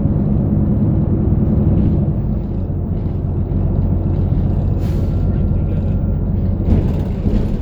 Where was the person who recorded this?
on a bus